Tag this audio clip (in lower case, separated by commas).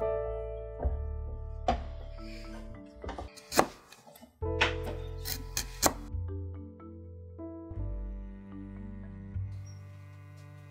wood, music